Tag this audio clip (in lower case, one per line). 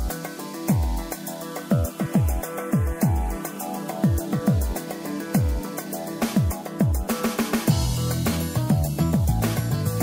music